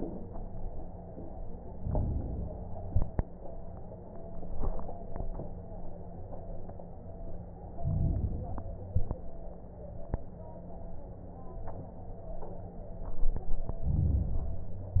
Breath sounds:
1.75-2.60 s: inhalation
7.77-8.74 s: inhalation
13.85-14.82 s: inhalation

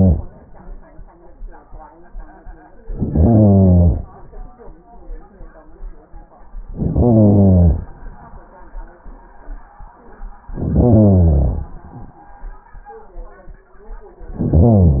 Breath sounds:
2.77-4.13 s: inhalation
6.66-7.93 s: inhalation
10.45-11.72 s: inhalation

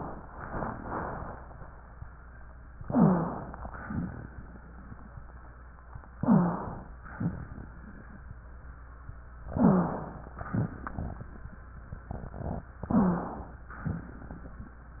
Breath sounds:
2.78-3.67 s: inhalation
2.84-3.39 s: wheeze
3.77-4.32 s: exhalation
3.77-4.32 s: rhonchi
6.13-6.67 s: wheeze
6.13-6.94 s: inhalation
7.14-7.68 s: exhalation
7.14-7.68 s: rhonchi
9.52-10.10 s: wheeze
9.52-10.32 s: inhalation
10.50-11.19 s: exhalation
10.50-11.19 s: rhonchi
12.82-13.41 s: wheeze
12.82-13.77 s: inhalation
13.77-14.72 s: exhalation
13.77-14.72 s: rhonchi

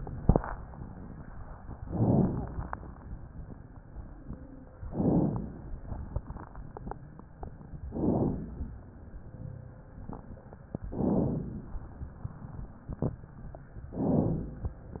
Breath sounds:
1.86-2.60 s: inhalation
1.86-2.60 s: rhonchi
4.88-5.62 s: inhalation
4.88-5.62 s: rhonchi
7.95-8.69 s: inhalation
7.95-8.69 s: rhonchi
10.93-11.67 s: inhalation
10.93-11.67 s: rhonchi
14.00-14.74 s: inhalation
14.00-14.74 s: rhonchi

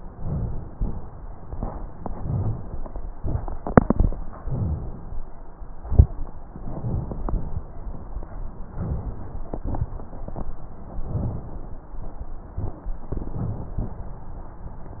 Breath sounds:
0.00-0.70 s: inhalation
0.12-0.65 s: rhonchi
0.72-1.46 s: exhalation
2.01-2.75 s: inhalation
2.07-2.60 s: rhonchi
3.26-3.61 s: exhalation
4.42-5.16 s: inhalation
4.48-5.01 s: rhonchi
5.82-6.17 s: exhalation
6.43-7.17 s: inhalation
6.76-7.29 s: rhonchi
7.27-7.61 s: exhalation
8.75-9.64 s: inhalation
8.79-9.16 s: rhonchi
9.66-9.98 s: exhalation
11.04-11.73 s: inhalation
11.08-11.46 s: rhonchi
13.13-14.02 s: inhalation
13.32-13.66 s: rhonchi

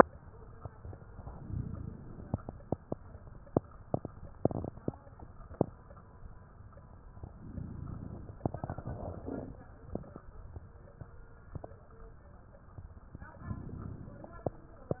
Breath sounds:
1.24-2.25 s: inhalation
1.24-2.25 s: crackles
7.33-8.34 s: inhalation
7.33-8.34 s: crackles
13.46-14.47 s: inhalation
13.46-14.47 s: crackles

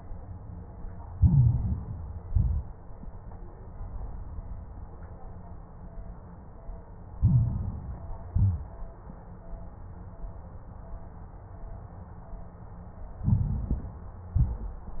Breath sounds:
1.08-2.11 s: inhalation
1.08-2.11 s: crackles
2.22-3.04 s: exhalation
2.22-3.04 s: crackles
7.14-8.17 s: inhalation
7.14-8.17 s: crackles
8.28-9.10 s: exhalation
8.28-9.10 s: crackles
13.22-14.25 s: inhalation
13.22-14.25 s: crackles
14.37-15.00 s: exhalation
14.37-15.00 s: crackles

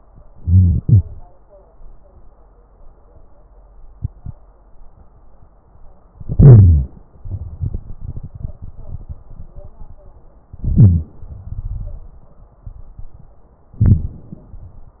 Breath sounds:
0.30-1.05 s: inhalation
0.30-1.05 s: crackles
6.17-6.92 s: inhalation
6.17-6.92 s: crackles
7.15-10.44 s: crackles
7.15-10.49 s: exhalation
10.48-11.24 s: inhalation
10.48-11.24 s: crackles
11.30-13.75 s: exhalation
11.30-13.75 s: crackles
13.73-14.48 s: inhalation

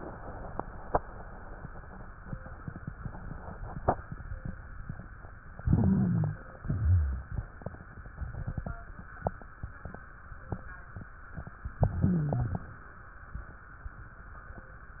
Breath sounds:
5.62-6.47 s: inhalation
5.64-6.49 s: wheeze
6.58-7.43 s: exhalation
11.79-12.64 s: inhalation
11.79-12.64 s: wheeze

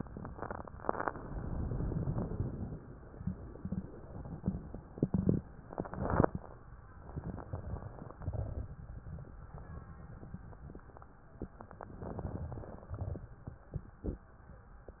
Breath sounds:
0.78-2.81 s: inhalation
2.86-5.45 s: exhalation
3.53-5.45 s: crackles
6.95-8.19 s: inhalation
8.18-9.07 s: exhalation
11.81-12.87 s: inhalation
12.94-14.01 s: exhalation

